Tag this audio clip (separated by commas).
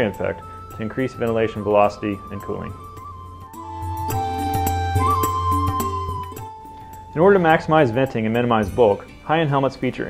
Speech, Music